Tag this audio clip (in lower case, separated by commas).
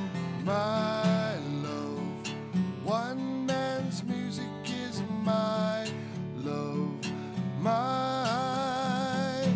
music